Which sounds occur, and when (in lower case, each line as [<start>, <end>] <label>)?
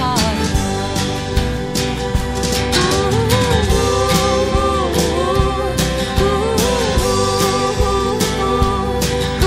[0.00, 1.35] choir
[0.00, 9.45] music
[2.71, 5.76] choir
[6.16, 9.02] choir